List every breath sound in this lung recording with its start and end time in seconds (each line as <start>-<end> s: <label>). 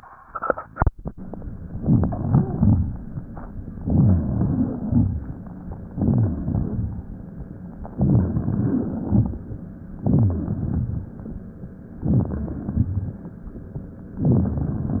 1.65-2.26 s: inhalation
2.28-2.89 s: exhalation
3.74-5.21 s: wheeze
3.77-4.39 s: inhalation
4.37-5.42 s: exhalation
5.87-6.50 s: inhalation
5.89-7.01 s: wheeze
6.47-7.40 s: exhalation
7.94-8.49 s: inhalation
8.49-9.67 s: exhalation
10.00-10.56 s: wheeze
10.01-10.57 s: inhalation
10.55-11.66 s: exhalation
12.05-12.61 s: crackles
12.06-12.63 s: inhalation
12.61-13.45 s: crackles
12.64-13.46 s: exhalation